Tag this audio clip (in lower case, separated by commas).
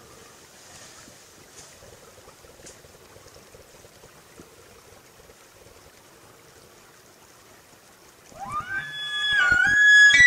elk bugling